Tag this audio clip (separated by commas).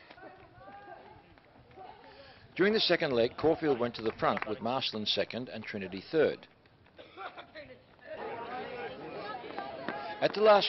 Speech, outside, urban or man-made, Run